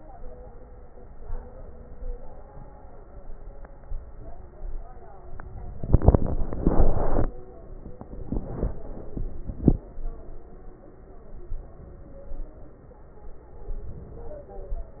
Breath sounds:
Inhalation: 1.23-2.03 s, 3.89-4.56 s, 11.50-12.25 s
Exhalation: 2.03-2.62 s, 4.56-5.32 s, 12.25-12.83 s, 14.31-15.00 s

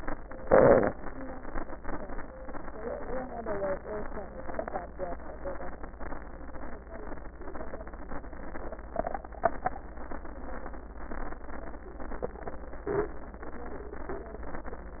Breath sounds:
Inhalation: 0.41-0.89 s
Crackles: 0.41-0.89 s

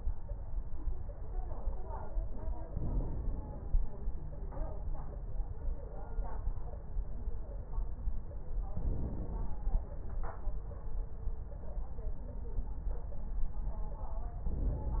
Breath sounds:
Inhalation: 2.70-3.80 s, 8.75-9.85 s, 14.50-15.00 s

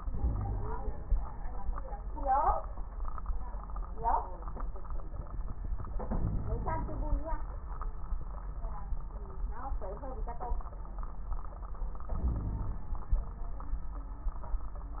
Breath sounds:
Inhalation: 6.07-7.17 s, 12.10-12.85 s
Wheeze: 0.17-0.74 s, 6.07-7.17 s, 12.22-12.85 s

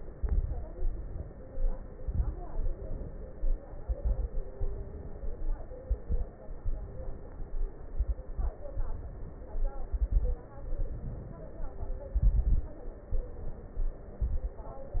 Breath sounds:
Inhalation: 0.11-0.68 s, 1.46-1.92 s, 2.60-3.42 s, 4.60-5.41 s, 6.67-7.48 s, 8.70-9.75 s, 10.64-11.68 s, 13.11-13.98 s
Exhalation: 0.68-1.36 s, 1.94-2.39 s, 3.78-4.44 s, 5.78-6.31 s, 7.94-8.59 s, 9.90-10.54 s, 12.12-12.82 s, 14.18-14.73 s
Crackles: 0.11-0.68 s, 1.46-1.92 s, 1.94-2.39 s, 3.78-4.44 s, 5.78-6.31 s, 7.94-8.59 s, 9.90-10.54 s, 12.12-12.82 s, 14.18-14.73 s

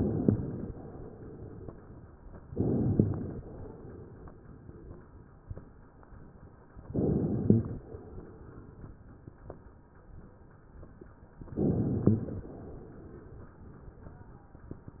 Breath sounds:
Inhalation: 0.00-0.70 s, 2.52-3.34 s, 6.96-7.78 s, 11.57-12.39 s

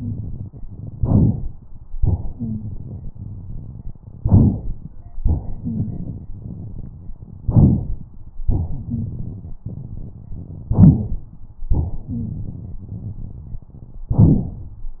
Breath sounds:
Inhalation: 0.93-1.52 s, 4.23-4.86 s, 7.46-8.01 s, 10.70-11.25 s, 14.13-14.69 s
Exhalation: 1.99-3.99 s, 5.18-7.17 s, 8.46-10.19 s, 11.73-13.72 s
Wheeze: 2.36-2.69 s, 5.62-5.89 s, 8.89-9.06 s, 12.07-12.32 s

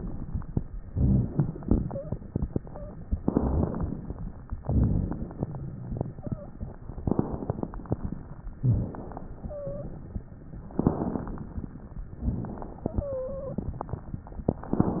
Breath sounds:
Inhalation: 3.21-4.49 s, 6.97-8.40 s, 10.71-12.06 s
Exhalation: 0.81-3.00 s, 4.59-6.80 s, 8.62-10.37 s, 12.23-14.05 s
Wheeze: 1.80-2.21 s, 2.55-2.96 s, 6.14-6.55 s, 9.45-10.00 s, 12.87-13.70 s
Crackles: 0.81-1.77 s, 3.21-4.49 s, 4.63-6.07 s, 6.97-8.01 s, 8.62-9.46 s, 10.71-12.06 s, 12.19-12.85 s

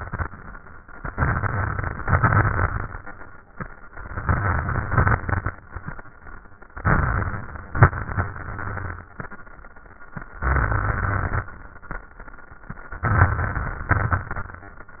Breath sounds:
Inhalation: 0.96-2.03 s, 3.91-4.91 s, 6.75-7.78 s, 10.42-11.50 s, 13.03-13.91 s
Exhalation: 2.05-3.13 s, 4.94-5.59 s, 7.79-9.02 s, 13.96-14.84 s
Crackles: 0.96-2.03 s, 2.05-3.13 s, 3.91-4.91 s, 4.94-5.59 s, 6.75-7.78 s, 7.79-9.02 s, 10.42-11.50 s, 13.03-13.91 s, 13.96-14.84 s

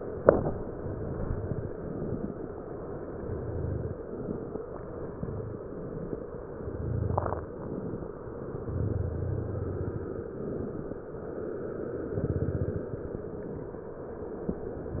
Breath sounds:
Inhalation: 1.68-2.68 s, 3.96-4.82 s, 5.99-6.55 s, 7.55-8.11 s, 10.09-11.09 s, 12.94-13.70 s
Exhalation: 0.66-1.66 s, 2.98-3.98 s, 5.08-5.95 s, 6.61-7.47 s, 8.61-10.01 s, 12.07-12.91 s, 14.90-15.00 s

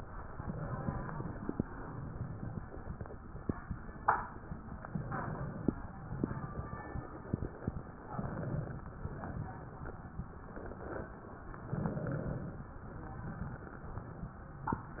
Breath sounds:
Inhalation: 0.28-1.52 s, 4.75-5.79 s, 8.00-8.95 s, 11.52-12.79 s
Exhalation: 1.57-2.71 s, 5.99-7.80 s, 9.07-11.30 s

